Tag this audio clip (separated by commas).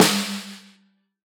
Musical instrument, Drum, Snare drum, Music, Percussion